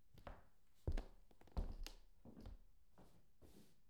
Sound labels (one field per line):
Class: footsteps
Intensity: low